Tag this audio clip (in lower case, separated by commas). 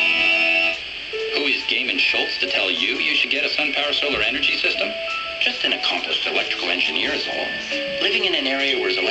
speech, radio, music